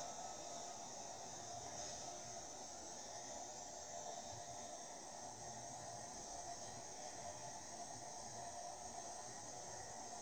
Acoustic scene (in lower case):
subway train